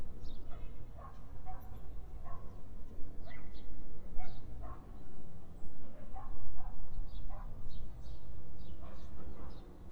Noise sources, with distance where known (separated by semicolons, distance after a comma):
dog barking or whining, far